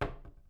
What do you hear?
wooden cupboard closing